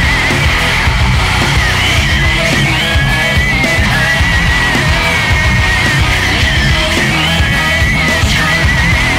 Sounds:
Music, Angry music

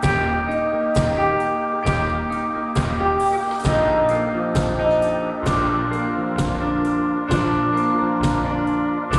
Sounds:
Music

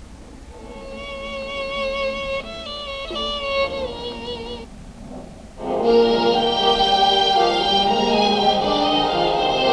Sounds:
Music, Television

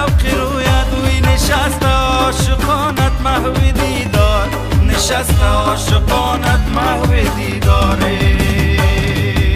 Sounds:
Singing, Music

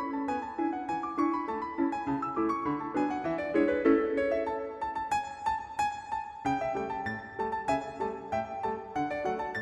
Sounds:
playing harpsichord

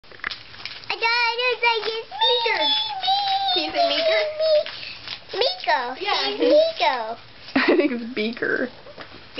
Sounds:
Speech, Child speech

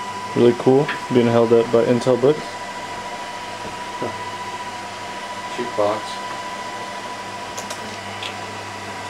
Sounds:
Speech, inside a small room

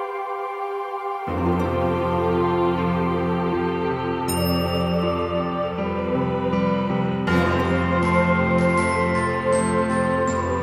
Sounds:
Music

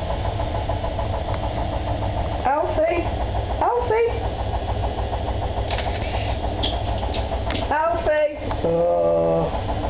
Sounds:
Speech

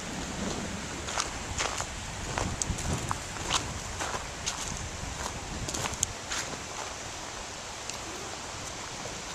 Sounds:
wind rustling leaves, Rustling leaves

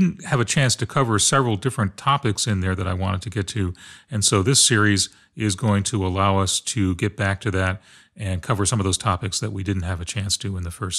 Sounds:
Speech

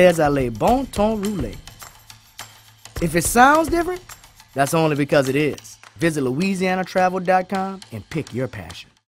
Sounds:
Music, Speech

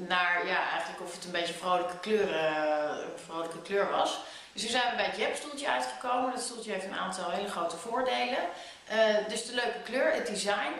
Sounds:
Speech

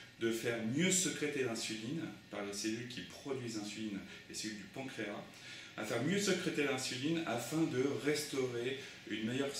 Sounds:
Speech

